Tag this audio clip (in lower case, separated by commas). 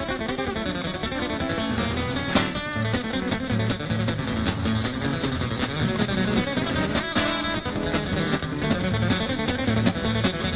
music